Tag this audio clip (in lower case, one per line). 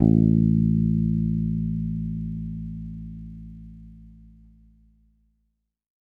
guitar
musical instrument
plucked string instrument
bass guitar
music